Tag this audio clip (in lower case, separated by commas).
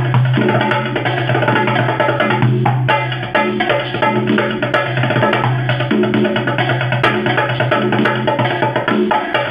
music, musical instrument, drum, inside a small room